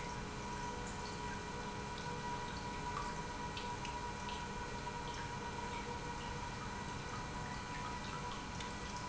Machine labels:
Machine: pump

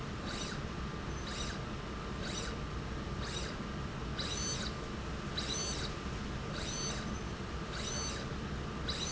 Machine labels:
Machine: slide rail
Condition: abnormal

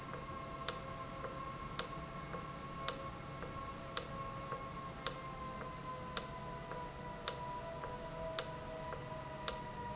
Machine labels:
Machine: valve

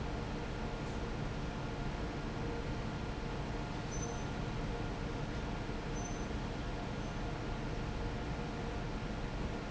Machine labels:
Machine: fan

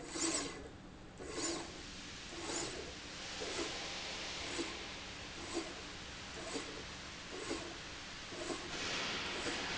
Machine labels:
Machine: slide rail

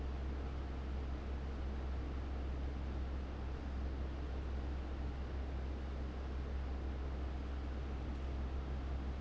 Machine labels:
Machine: fan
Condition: abnormal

